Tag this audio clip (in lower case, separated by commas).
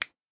finger snapping, hands